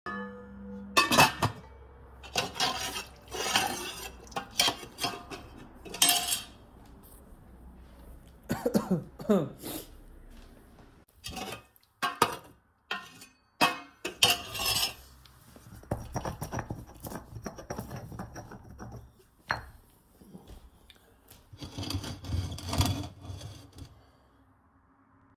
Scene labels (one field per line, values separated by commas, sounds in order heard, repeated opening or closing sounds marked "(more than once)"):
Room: kitchen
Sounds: cutlery and dishes